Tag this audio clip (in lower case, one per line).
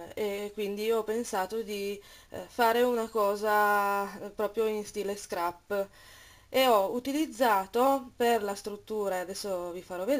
speech